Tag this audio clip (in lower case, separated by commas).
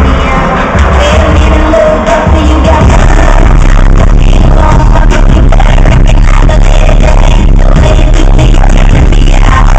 music